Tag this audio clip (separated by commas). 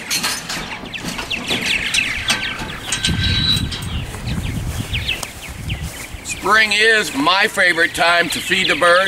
Speech, Bird